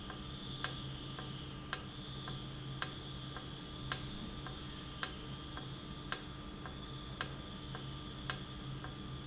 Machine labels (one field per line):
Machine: valve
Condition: normal